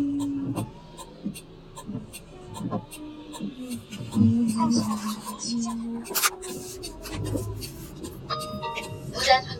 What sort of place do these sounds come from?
car